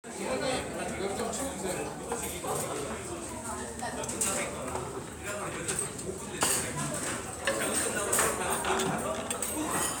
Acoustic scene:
restaurant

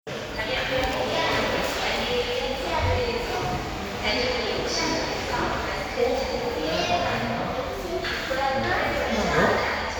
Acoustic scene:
crowded indoor space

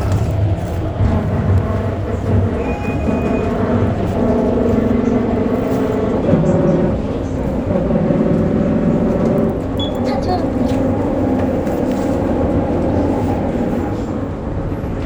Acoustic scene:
bus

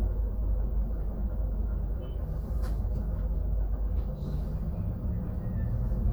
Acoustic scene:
bus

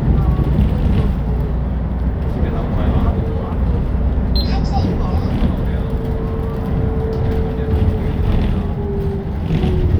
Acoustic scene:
bus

